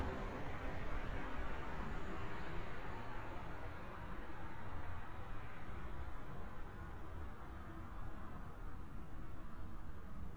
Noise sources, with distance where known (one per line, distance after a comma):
background noise